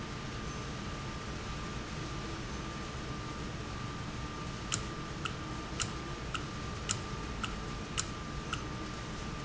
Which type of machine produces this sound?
valve